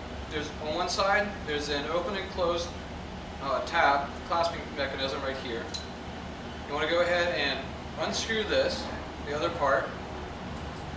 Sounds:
Speech

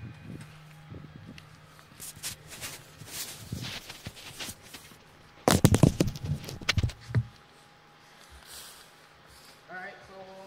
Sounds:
Speech, outside, rural or natural

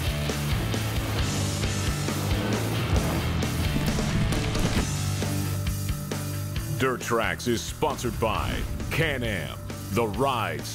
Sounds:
Music, Speech

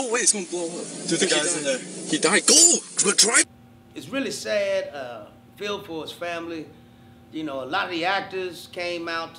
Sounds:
Speech

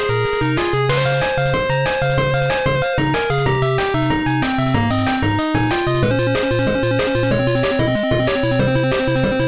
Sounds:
Music, Video game music

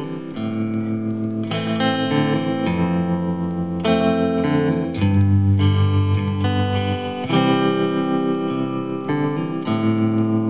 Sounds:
Electric guitar, Plucked string instrument

